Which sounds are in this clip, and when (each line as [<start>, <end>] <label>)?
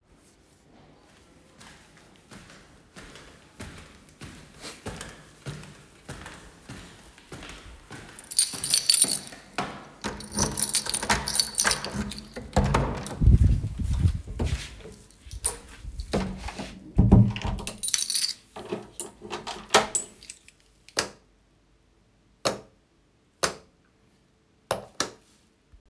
[0.00, 9.72] footsteps
[8.49, 12.51] keys
[10.22, 13.56] door
[13.92, 16.75] footsteps
[15.15, 15.88] keys
[16.98, 20.09] door
[17.99, 18.58] keys
[19.90, 20.64] keys
[20.82, 25.25] light switch